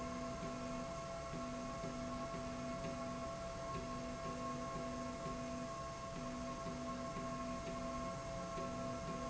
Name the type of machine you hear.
slide rail